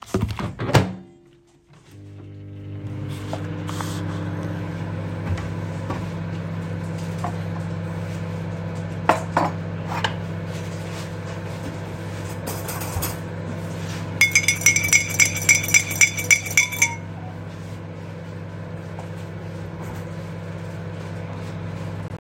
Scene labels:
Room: kitchen; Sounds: microwave, wardrobe or drawer, cutlery and dishes, phone ringing

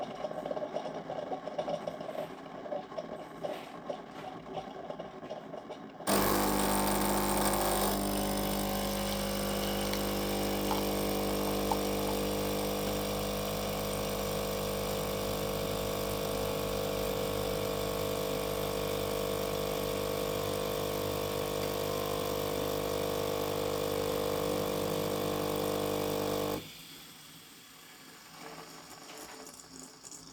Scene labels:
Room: kitchen; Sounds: coffee machine

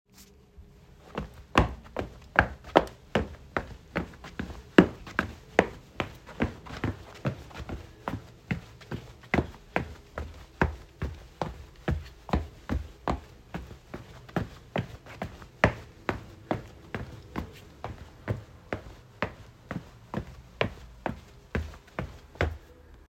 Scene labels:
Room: bedroom; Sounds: footsteps

